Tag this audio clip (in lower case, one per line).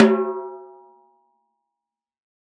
drum
music
snare drum
musical instrument
percussion